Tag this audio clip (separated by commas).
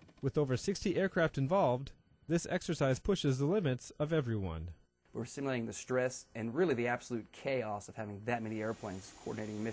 Speech